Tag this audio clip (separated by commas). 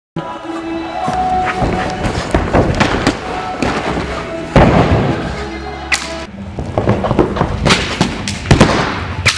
Music, inside a large room or hall